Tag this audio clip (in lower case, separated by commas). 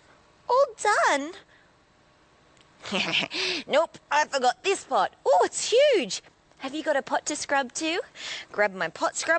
speech